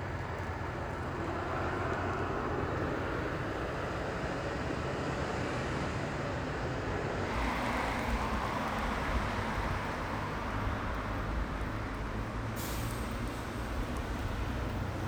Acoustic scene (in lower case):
street